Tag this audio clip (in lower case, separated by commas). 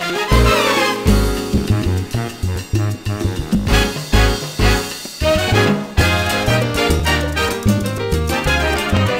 music